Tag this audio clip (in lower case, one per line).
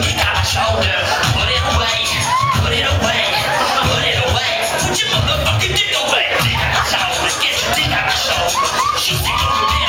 music